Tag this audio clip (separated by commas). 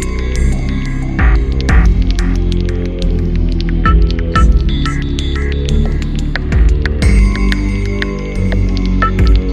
Music, Soundtrack music, Throbbing